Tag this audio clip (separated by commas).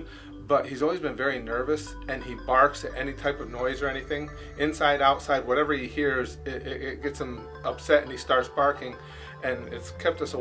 Speech